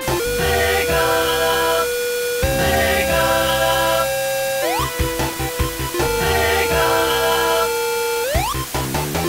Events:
0.0s-9.2s: music
0.0s-9.2s: video game sound
0.3s-1.9s: female singing
2.5s-4.0s: female singing
4.5s-4.8s: sound effect
6.1s-7.6s: female singing
8.1s-8.5s: sound effect

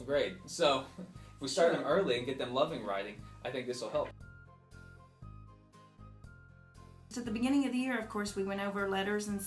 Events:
0.0s-0.3s: male speech
0.0s-9.4s: conversation
0.0s-9.4s: music
0.5s-0.9s: male speech
1.1s-1.3s: breathing
1.4s-3.1s: male speech
1.5s-2.0s: woman speaking
3.4s-4.1s: male speech
7.1s-9.4s: woman speaking

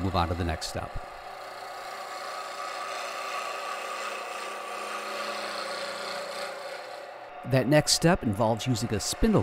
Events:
0.0s-1.0s: male speech
0.0s-9.4s: mechanisms
7.4s-9.4s: male speech

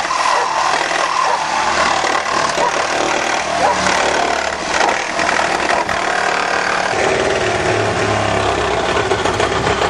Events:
0.0s-9.8s: drill
0.0s-9.8s: mechanisms
0.2s-0.5s: bark
1.0s-1.3s: bark
2.5s-2.8s: bark
3.5s-3.9s: bark
4.7s-5.1s: bark
5.7s-5.9s: bark

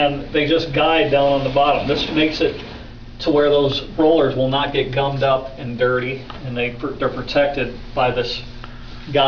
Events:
0.0s-9.2s: mechanisms
0.3s-2.9s: sliding door
8.6s-8.6s: tap

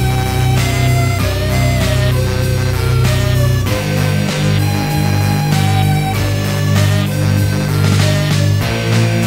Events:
0.0s-9.2s: music

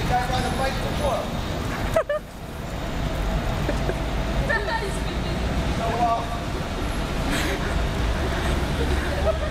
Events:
0.0s-9.5s: traffic noise
0.1s-1.2s: male speech
1.9s-2.2s: laughter
3.6s-3.7s: laughter
3.8s-3.9s: laughter
4.5s-4.6s: laughter
4.7s-4.8s: laughter
4.8s-5.3s: speech
5.8s-6.2s: male speech
6.5s-6.8s: generic impact sounds
7.3s-7.7s: breathing
7.5s-7.7s: human sounds
8.2s-8.5s: human sounds
8.8s-8.9s: generic impact sounds
9.2s-9.5s: laughter

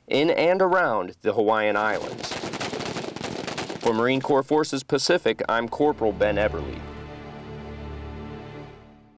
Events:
0.0s-1.1s: male speech
1.2s-2.2s: male speech
1.7s-4.6s: wind noise (microphone)
3.8s-6.5s: male speech
5.7s-9.1s: music
6.6s-6.6s: tick
6.7s-6.8s: tick

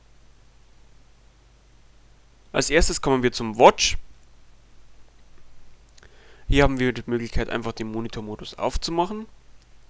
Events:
0.0s-9.8s: mechanisms
2.5s-4.0s: man speaking
4.2s-4.3s: clicking
5.9s-6.1s: clicking
6.1s-6.5s: breathing
6.5s-9.3s: man speaking
6.6s-6.6s: clicking
6.8s-6.8s: clicking
9.6s-9.7s: clicking

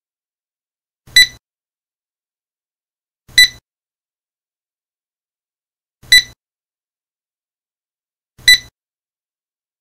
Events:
1.0s-1.4s: beep
3.3s-3.6s: beep
6.0s-6.4s: beep
8.4s-8.7s: beep

